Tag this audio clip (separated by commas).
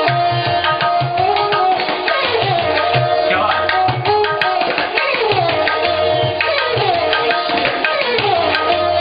Percussion, Tabla, Drum